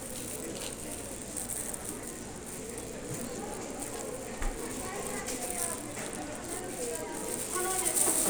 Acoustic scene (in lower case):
crowded indoor space